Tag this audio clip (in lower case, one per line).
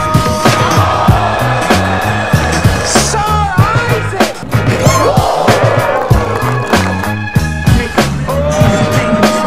basketball bounce
music
speech